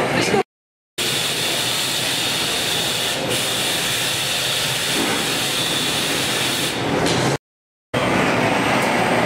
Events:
0.0s-0.4s: human voice
0.0s-0.4s: mechanisms
1.0s-7.4s: mechanisms
5.0s-5.4s: generic impact sounds
7.0s-7.3s: generic impact sounds
7.9s-9.2s: fire
7.9s-9.2s: mechanisms

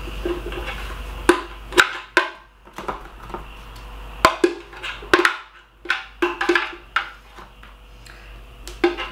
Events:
0.0s-0.8s: generic impact sounds
0.0s-9.1s: mechanisms
1.2s-1.5s: generic impact sounds
1.7s-1.9s: generic impact sounds
2.1s-2.4s: generic impact sounds
2.6s-3.0s: generic impact sounds
3.2s-3.4s: generic impact sounds
3.5s-3.8s: generic impact sounds
4.2s-4.6s: generic impact sounds
4.7s-4.9s: generic impact sounds
5.0s-5.6s: generic impact sounds
5.8s-6.0s: generic impact sounds
6.2s-6.8s: generic impact sounds
6.9s-7.1s: generic impact sounds
7.3s-7.7s: generic impact sounds
8.0s-8.1s: tick
8.6s-9.1s: generic impact sounds

